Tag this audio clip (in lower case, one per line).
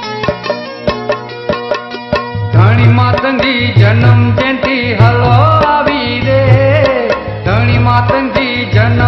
music